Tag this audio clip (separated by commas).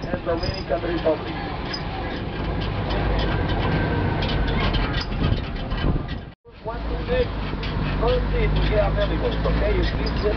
Vehicle, Truck, Speech